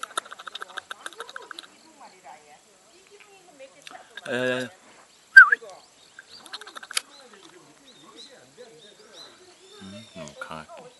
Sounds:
speech

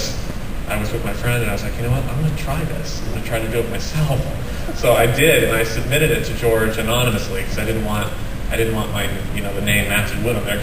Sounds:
speech

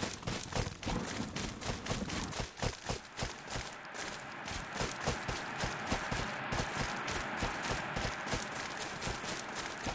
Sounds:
walk

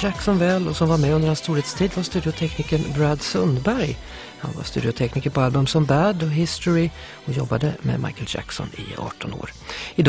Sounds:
music, speech

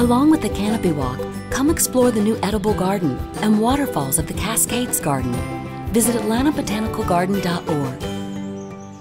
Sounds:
music, speech

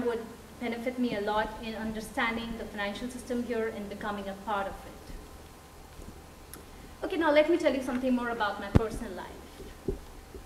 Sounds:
female speech, speech

